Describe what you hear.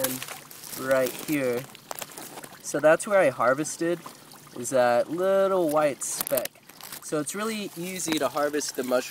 An young adult male is speaking, and water is gurgling and splashing